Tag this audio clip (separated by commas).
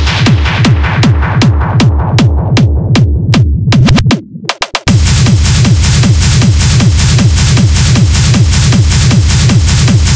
Music